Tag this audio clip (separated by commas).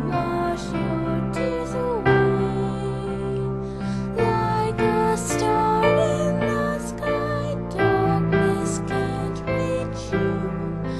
Music, Female singing